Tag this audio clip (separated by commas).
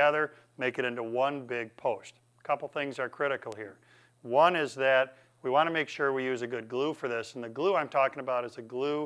Speech